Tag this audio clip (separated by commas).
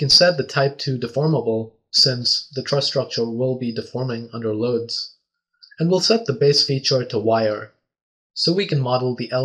Speech